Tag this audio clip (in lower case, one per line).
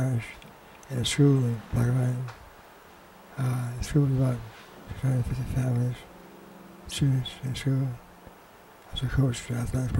speech
man speaking
monologue